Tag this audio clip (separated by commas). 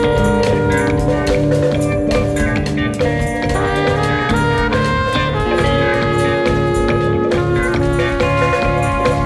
Orchestra